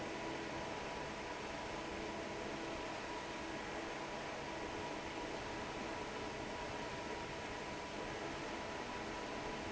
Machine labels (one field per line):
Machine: fan